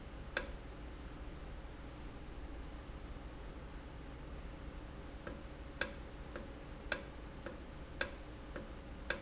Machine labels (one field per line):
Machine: valve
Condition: normal